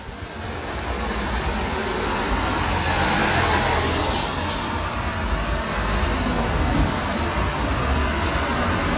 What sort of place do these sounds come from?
street